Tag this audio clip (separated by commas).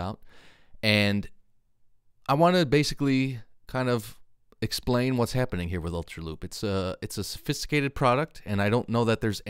Speech